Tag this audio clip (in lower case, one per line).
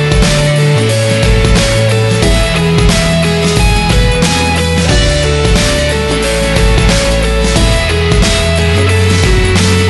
music